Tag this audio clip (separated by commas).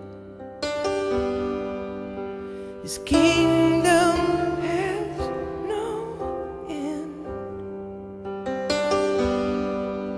Music